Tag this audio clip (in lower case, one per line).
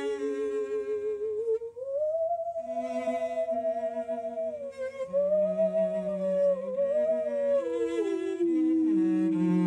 playing theremin